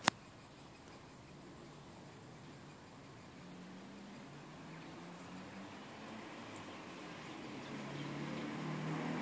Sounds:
Bird

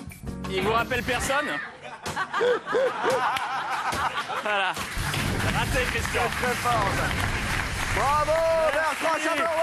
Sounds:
Music, Speech

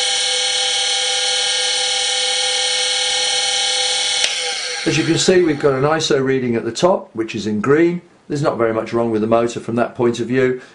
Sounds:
Vibration, Speech

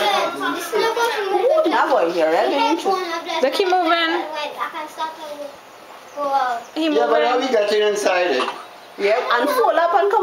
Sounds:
Speech

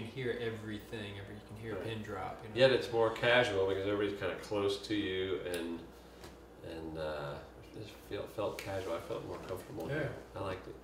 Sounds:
Speech

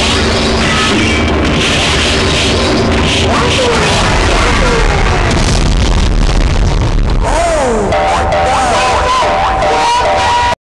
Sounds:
Speech

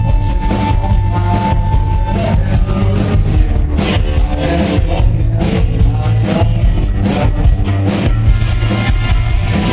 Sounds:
Music, Rock and roll

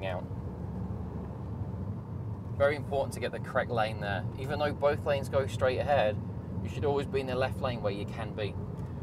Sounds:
Speech

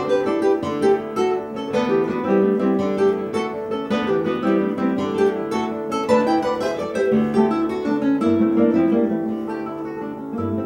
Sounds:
Plucked string instrument, Acoustic guitar, Strum, Guitar, Music, Musical instrument

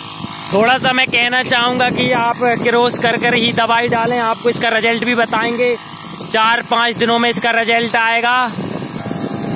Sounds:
spraying water

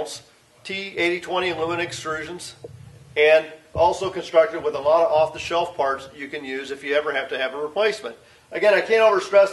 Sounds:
Speech

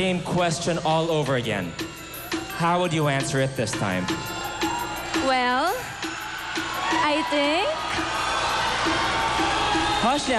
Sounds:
Music, Speech

